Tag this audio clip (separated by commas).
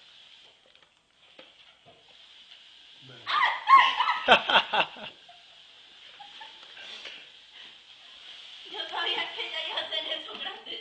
Speech